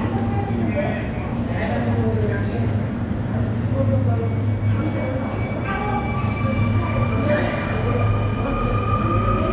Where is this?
in a subway station